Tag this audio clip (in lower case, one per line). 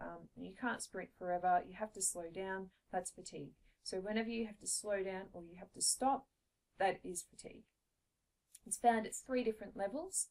speech